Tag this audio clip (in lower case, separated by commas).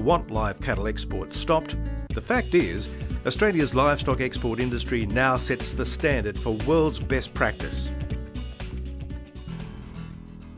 music, speech